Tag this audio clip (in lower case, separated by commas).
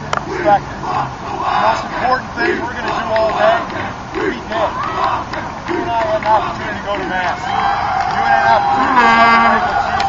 speech, man speaking